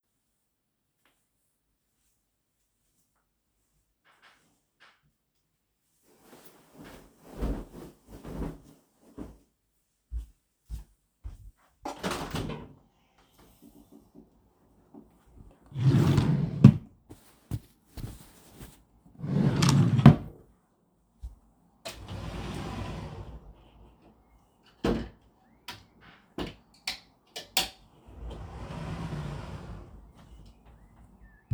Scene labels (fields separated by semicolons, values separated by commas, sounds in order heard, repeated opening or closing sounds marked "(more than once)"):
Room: bedroom; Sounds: footsteps, window, wardrobe or drawer (more than once)